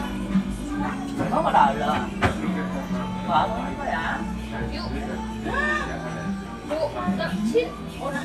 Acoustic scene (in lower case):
crowded indoor space